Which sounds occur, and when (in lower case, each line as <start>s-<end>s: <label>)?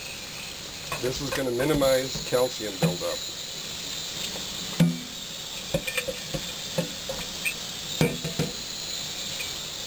0.0s-9.8s: water tap
0.8s-1.0s: dishes, pots and pans
1.0s-3.1s: man speaking
1.2s-1.4s: dishes, pots and pans
1.5s-2.3s: dishes, pots and pans
2.8s-2.9s: dishes, pots and pans
4.2s-4.4s: dishes, pots and pans
4.8s-5.1s: dishes, pots and pans
5.7s-6.4s: dishes, pots and pans
6.7s-6.9s: dishes, pots and pans
7.1s-7.2s: dishes, pots and pans
7.4s-7.5s: generic impact sounds
7.4s-7.4s: generic impact sounds
8.0s-8.5s: dishes, pots and pans
9.4s-9.5s: dishes, pots and pans